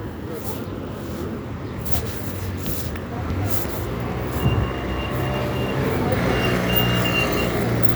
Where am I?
in a residential area